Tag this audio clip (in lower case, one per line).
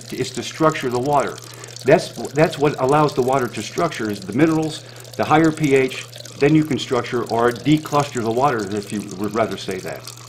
speech
water